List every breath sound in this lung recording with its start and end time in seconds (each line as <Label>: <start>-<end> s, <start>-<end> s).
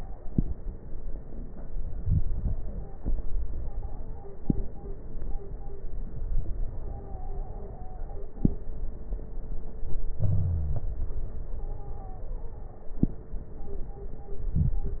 Inhalation: 1.50-3.00 s, 10.19-11.46 s
Wheeze: 10.19-10.84 s
Stridor: 2.46-4.77 s, 6.86-8.31 s, 11.60-12.72 s